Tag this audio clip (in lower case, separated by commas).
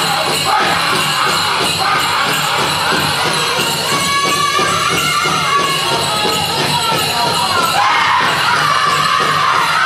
speech, music